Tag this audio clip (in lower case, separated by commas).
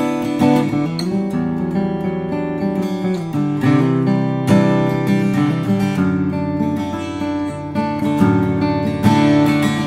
musical instrument, music, guitar, acoustic guitar